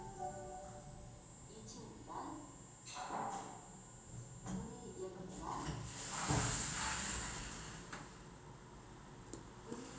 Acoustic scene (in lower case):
elevator